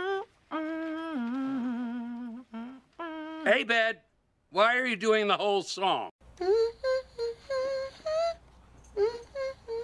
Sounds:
people humming

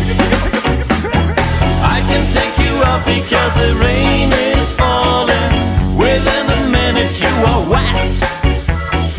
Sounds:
music

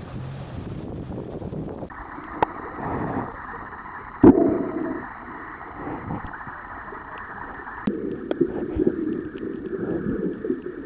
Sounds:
water vehicle

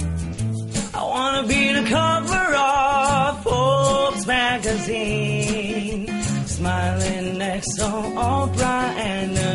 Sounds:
percussion
music

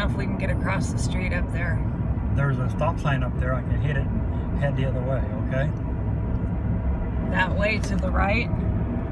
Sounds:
speech

